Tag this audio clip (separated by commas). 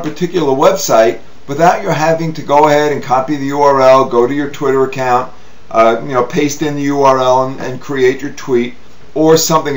Speech